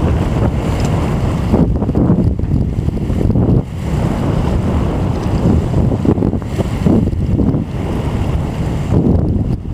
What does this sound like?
A boat sails through water as heavy winds blow against it